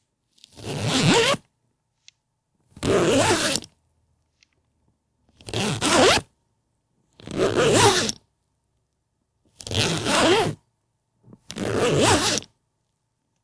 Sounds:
Zipper (clothing), home sounds

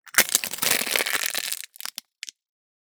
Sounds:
Crushing

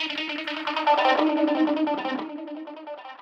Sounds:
Musical instrument, Guitar, Plucked string instrument, Music

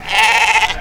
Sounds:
livestock, Animal

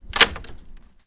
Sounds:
Crack

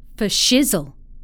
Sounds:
Human voice, Speech, Female speech

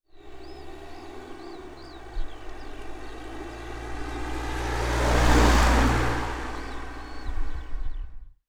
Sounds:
Motor vehicle (road), Vehicle, Car

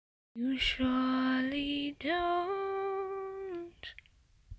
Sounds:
Human voice, Female singing, Singing

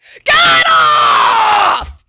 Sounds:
Yell, Shout, Human voice

